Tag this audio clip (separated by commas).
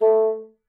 Music, Musical instrument, Wind instrument